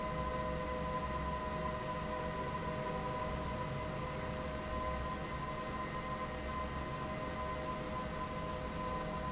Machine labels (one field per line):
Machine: fan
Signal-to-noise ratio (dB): -6 dB